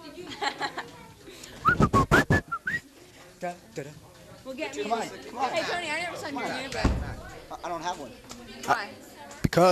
A woman laughs followed by whistling, people talk in the distance